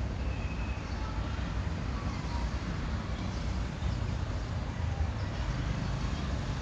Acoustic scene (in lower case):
residential area